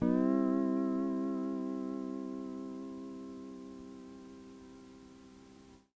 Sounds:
musical instrument, plucked string instrument, music, guitar

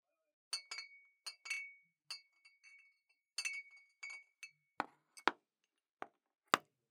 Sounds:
glass, clink

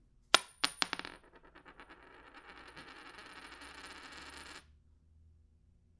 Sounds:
domestic sounds, coin (dropping)

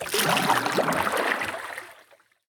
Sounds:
splash, liquid

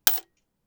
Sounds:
coin (dropping), home sounds

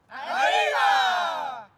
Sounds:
cheering, human group actions

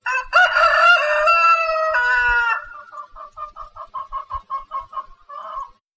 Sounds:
livestock, chicken, fowl, animal

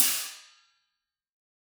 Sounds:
hi-hat, cymbal, percussion, music, musical instrument

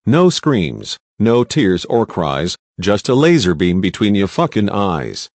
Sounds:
human voice, speech

